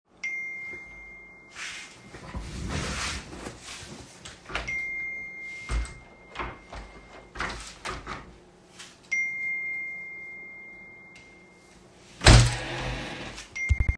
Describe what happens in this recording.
I opened the window and received several notifications.